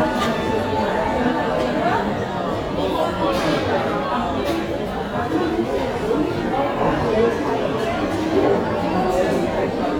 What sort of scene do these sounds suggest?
cafe